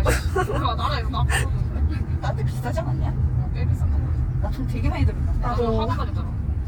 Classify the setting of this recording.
car